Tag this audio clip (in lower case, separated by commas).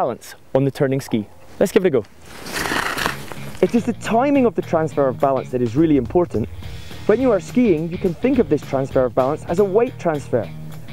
speech, music